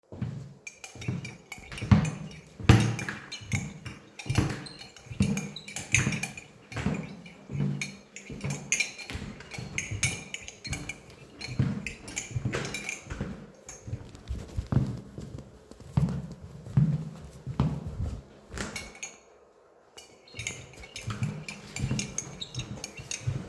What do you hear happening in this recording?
You are a quite stressed because of the exams that happens in 5 minutes. You just stir your coffee and walk up and down the corridor.